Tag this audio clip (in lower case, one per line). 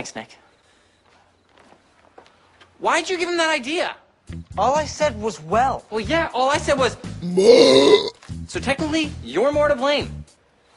speech
music
eructation